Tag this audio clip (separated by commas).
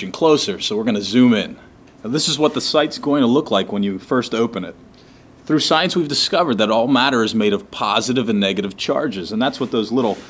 Speech